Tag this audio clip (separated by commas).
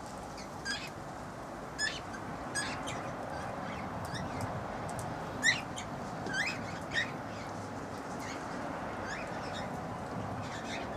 Domestic animals, Bird